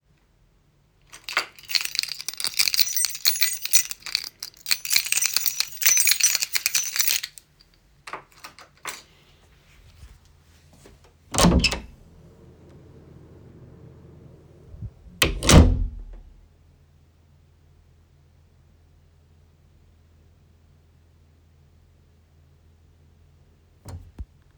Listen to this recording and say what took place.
I was leaving my home so I use the keys opened and then closed the doors.